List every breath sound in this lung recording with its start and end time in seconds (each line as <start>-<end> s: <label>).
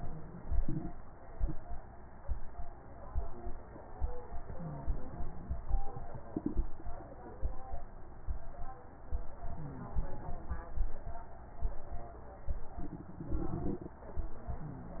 4.43-5.62 s: inhalation
4.43-5.62 s: crackles
9.46-10.66 s: inhalation
9.46-10.66 s: crackles